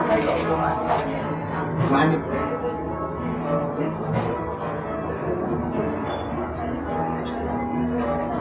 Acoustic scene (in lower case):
cafe